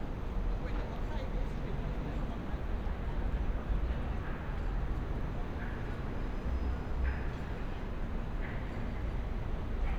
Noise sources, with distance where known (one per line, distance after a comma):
unidentified human voice, far